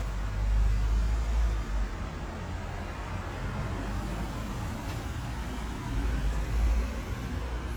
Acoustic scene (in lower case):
residential area